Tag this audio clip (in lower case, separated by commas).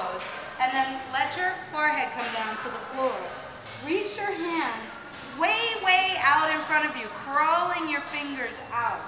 speech